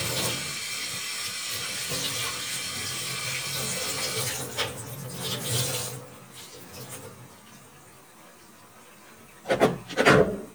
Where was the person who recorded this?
in a kitchen